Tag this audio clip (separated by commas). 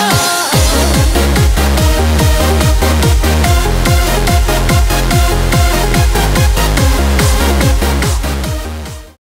Rhythm and blues, Music